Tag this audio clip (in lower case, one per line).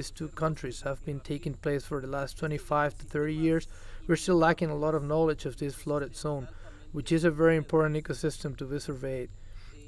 speech
outside, rural or natural